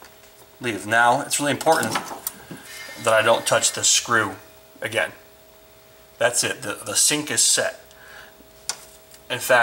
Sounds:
speech

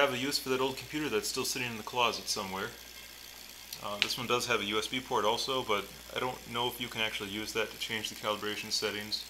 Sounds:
speech

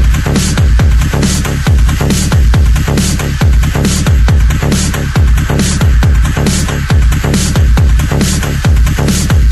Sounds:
music
electronic music

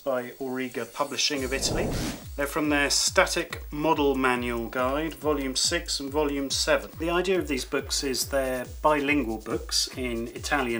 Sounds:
music
speech

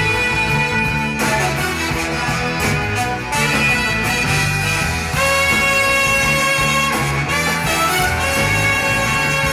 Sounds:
music

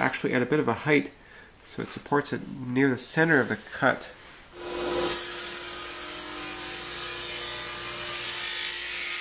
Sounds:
speech

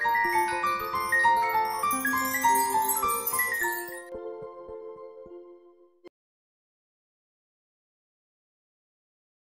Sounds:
music

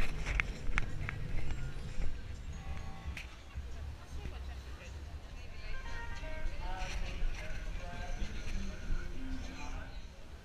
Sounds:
walk
speech
music

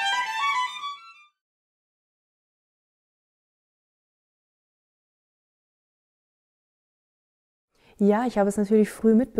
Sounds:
music
speech
musical instrument

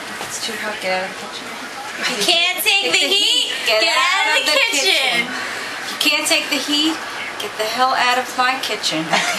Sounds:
speech

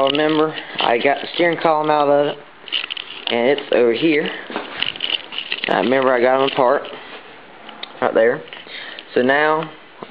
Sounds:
speech

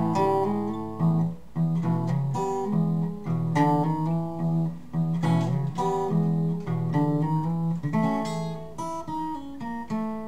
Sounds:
guitar
music
blues

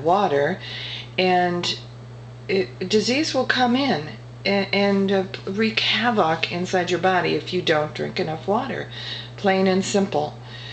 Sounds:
speech

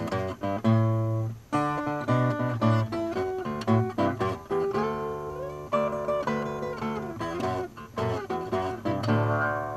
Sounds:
music

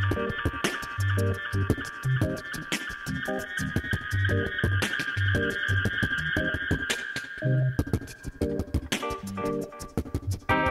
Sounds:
guitar
music
beatboxing

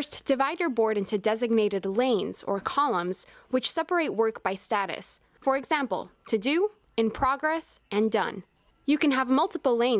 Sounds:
speech

